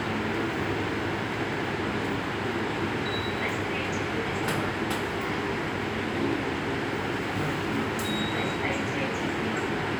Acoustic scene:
subway station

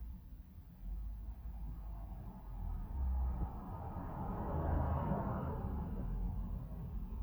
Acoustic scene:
residential area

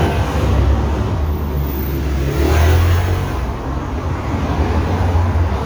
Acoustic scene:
street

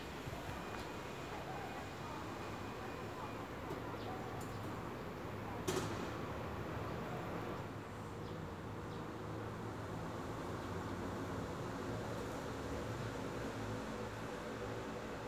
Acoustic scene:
residential area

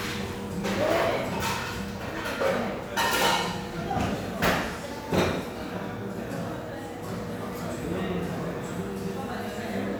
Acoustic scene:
cafe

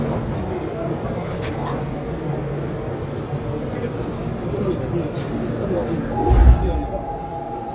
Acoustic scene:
subway train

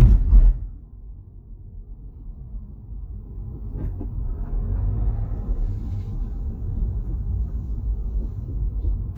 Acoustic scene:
car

